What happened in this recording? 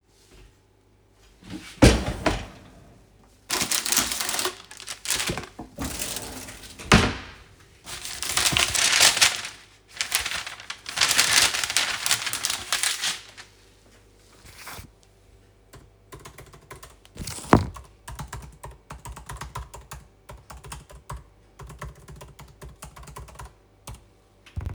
I opened a drawer and started searching for a baking paper, I found it, I took it out and closed the drawer. I made sure the paper didn't roll up and started typing on a notebook keyboard in a mug with a spoon, lifted the mug, took a sip, coughed and placed it back on the desk. Then I started typing on the keyboard.